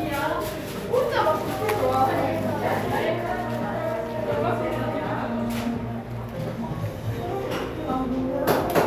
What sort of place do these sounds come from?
cafe